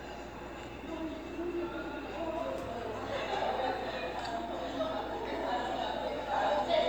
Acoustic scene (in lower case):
cafe